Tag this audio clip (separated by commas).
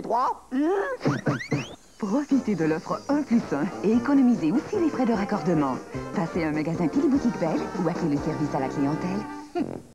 Music, Speech